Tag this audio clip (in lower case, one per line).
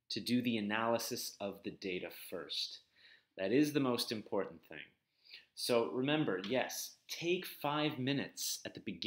speech